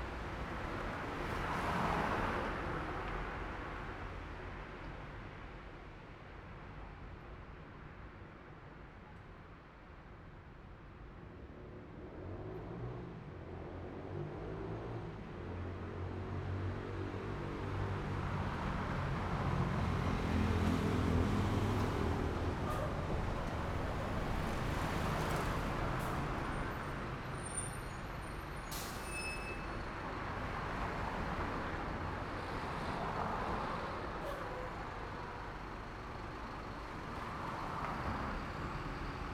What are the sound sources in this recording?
car, motorcycle, bus, car wheels rolling, car engine accelerating, motorcycle engine accelerating, bus wheels rolling, bus compressor, bus engine accelerating, bus brakes, bus engine idling